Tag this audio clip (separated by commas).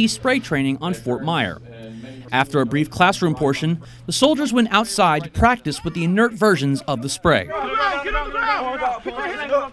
Speech